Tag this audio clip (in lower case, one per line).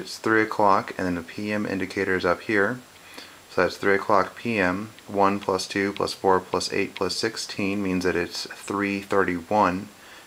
speech